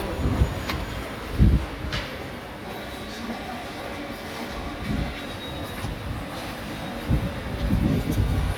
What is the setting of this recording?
subway station